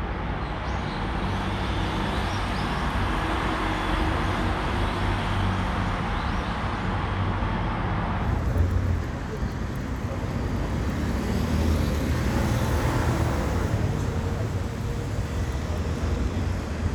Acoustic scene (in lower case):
street